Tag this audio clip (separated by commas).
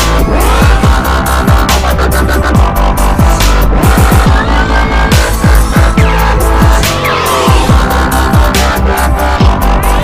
Music